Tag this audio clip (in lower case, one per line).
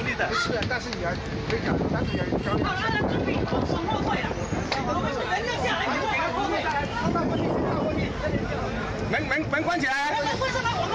speech